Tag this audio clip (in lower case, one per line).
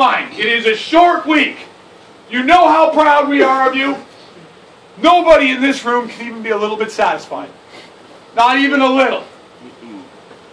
monologue
speech
man speaking